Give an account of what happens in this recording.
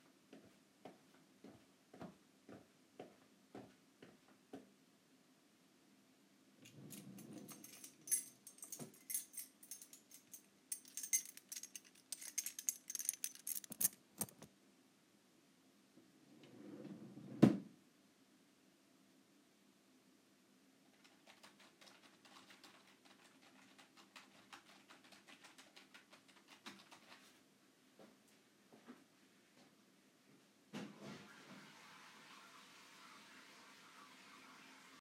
Footsteps entered the bedroom. A drawer was opened with a partial overlap of keys being drawn from inside, then the drawer was closed. The sound of typing on a keyboard followed, and after it stopped a distant toilet flush was heard.